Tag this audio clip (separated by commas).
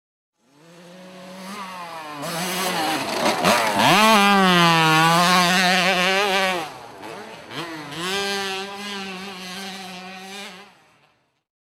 Motorcycle, Vehicle, Motor vehicle (road)